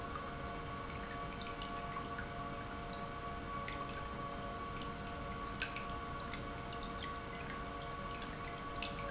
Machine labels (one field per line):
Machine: pump